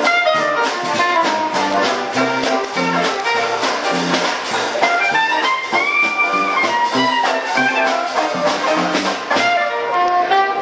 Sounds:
Music

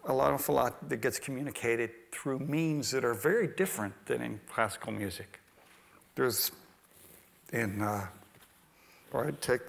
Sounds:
Speech

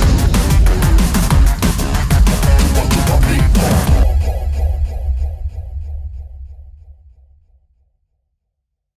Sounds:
Music

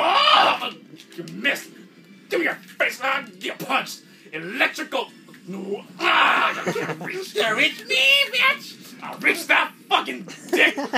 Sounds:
Speech

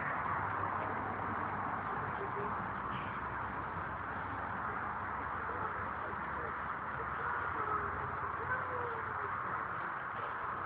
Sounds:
Speech

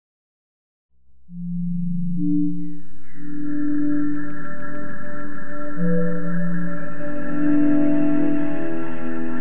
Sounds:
Music

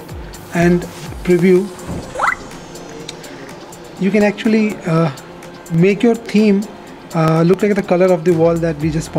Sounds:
Speech, Music

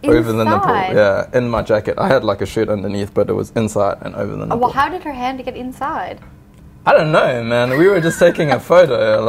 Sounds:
inside a small room, Speech

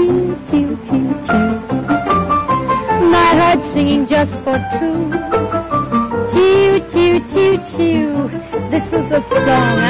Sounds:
Music, Singing

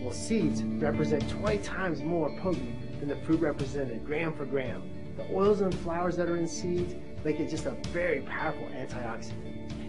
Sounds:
Speech, Music

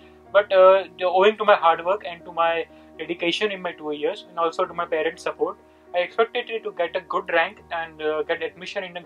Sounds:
Speech, Music

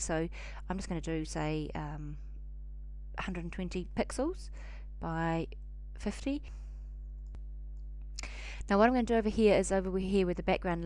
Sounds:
Speech

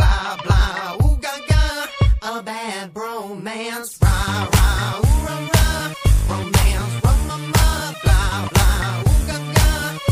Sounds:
Music, Rhythm and blues

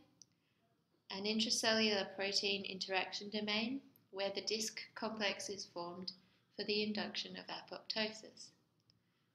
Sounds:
Speech

